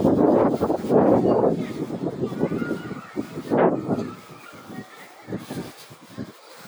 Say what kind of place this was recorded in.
residential area